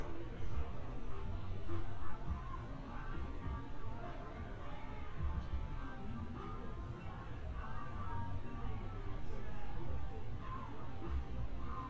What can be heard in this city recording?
music from an unclear source